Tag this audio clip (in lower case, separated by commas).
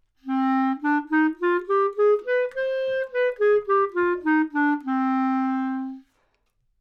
wind instrument, music, musical instrument